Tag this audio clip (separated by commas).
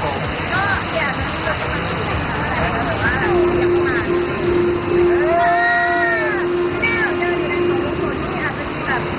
Speech